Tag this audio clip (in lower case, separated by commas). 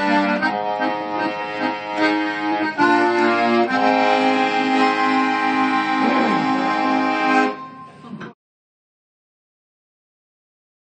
musical instrument, music, accordion, playing accordion